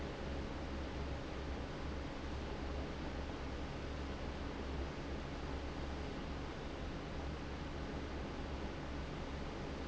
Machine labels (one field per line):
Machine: fan